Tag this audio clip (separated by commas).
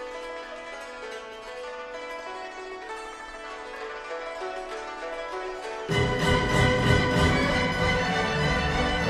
Music